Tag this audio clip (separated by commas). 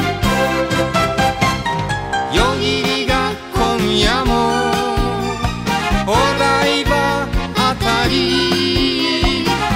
Music, Singing